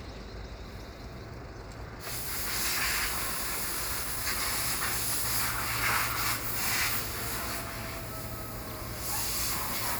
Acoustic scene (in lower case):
street